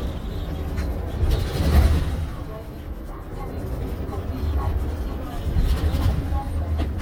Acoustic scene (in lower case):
bus